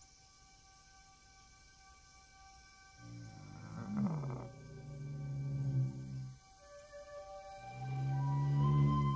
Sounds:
music, outside, rural or natural

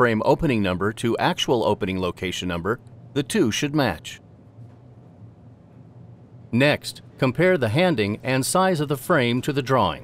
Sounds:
speech

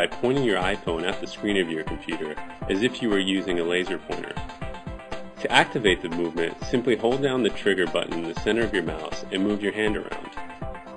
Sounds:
speech, music

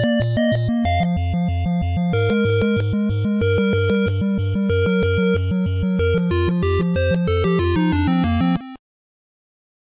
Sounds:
soundtrack music, music

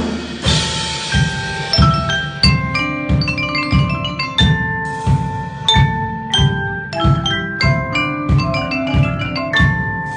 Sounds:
musical instrument, percussion, music, marimba

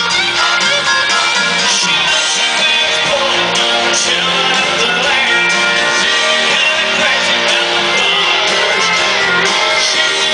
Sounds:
music, male singing

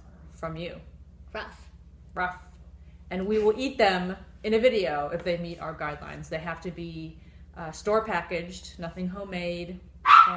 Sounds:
child speech, speech

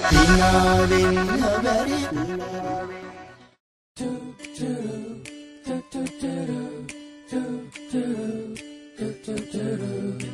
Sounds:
pop music, music

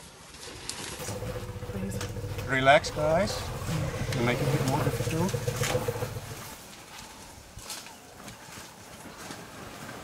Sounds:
elephant trumpeting

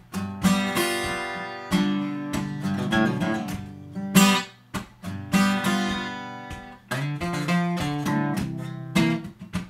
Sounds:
musical instrument, guitar, music, strum, acoustic guitar, plucked string instrument

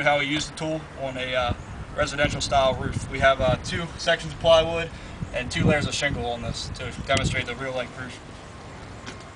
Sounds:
speech

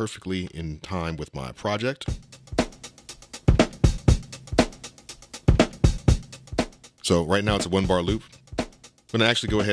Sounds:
sampler, music, speech

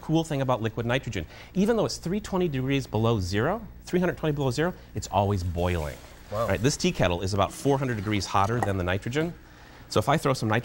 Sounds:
speech

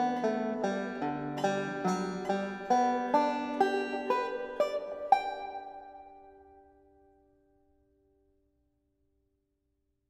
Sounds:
musical instrument, music, plucked string instrument, playing banjo, banjo

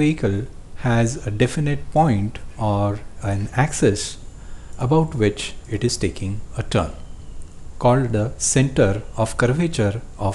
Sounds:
speech

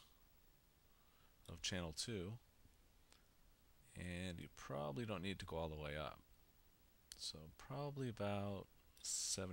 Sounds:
speech

